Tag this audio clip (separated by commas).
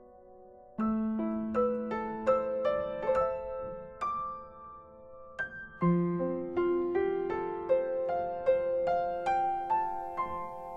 Musical instrument, Music